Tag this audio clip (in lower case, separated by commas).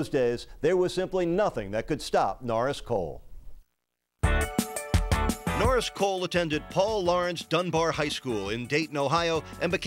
speech, music